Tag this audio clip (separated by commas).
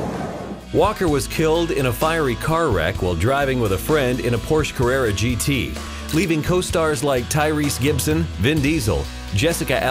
Speech, Music